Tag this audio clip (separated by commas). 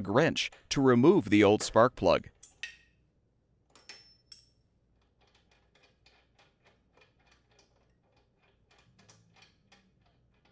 Speech